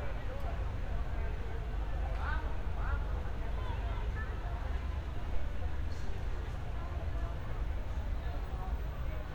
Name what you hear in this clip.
person or small group talking